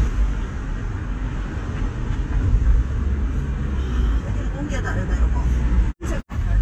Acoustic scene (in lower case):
car